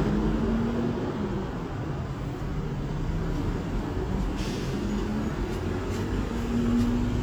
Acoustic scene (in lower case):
street